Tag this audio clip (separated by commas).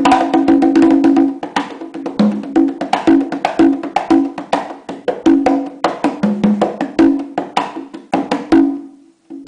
Music, Drum, Percussion, Musical instrument